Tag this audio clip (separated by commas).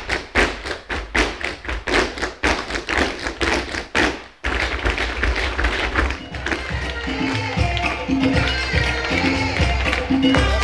Music, Tap